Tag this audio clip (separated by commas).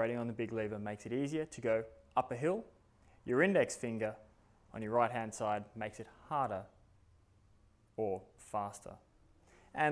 Speech